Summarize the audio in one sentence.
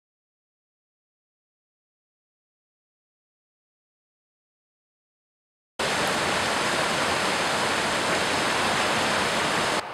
A strong and powerful flowing waterfall